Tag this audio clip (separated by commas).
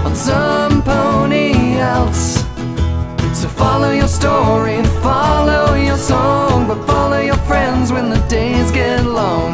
Music